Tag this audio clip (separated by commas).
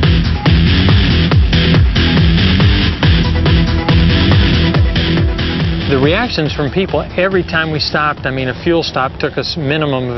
Music, Speech